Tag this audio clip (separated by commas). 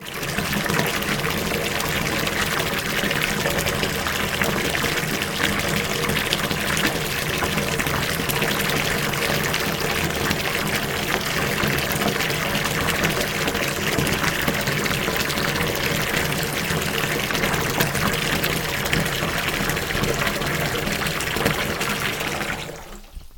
Liquid, Bathtub (filling or washing), home sounds, Fill (with liquid), faucet